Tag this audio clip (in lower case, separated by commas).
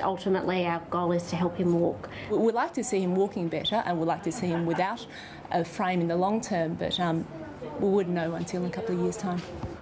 woman speaking, kid speaking